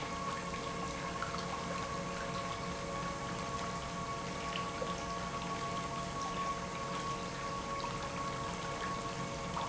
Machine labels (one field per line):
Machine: pump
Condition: normal